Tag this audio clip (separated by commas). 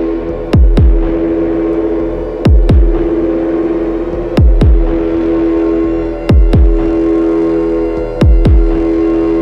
Music, Electronic music